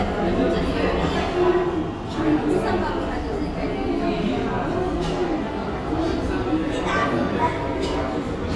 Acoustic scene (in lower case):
restaurant